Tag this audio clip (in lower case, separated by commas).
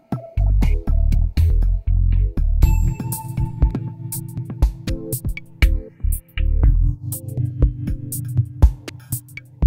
ambient music, sampler, synthesizer, guitar, drum machine